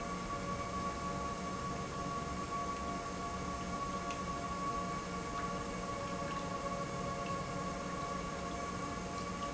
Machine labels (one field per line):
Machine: pump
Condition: normal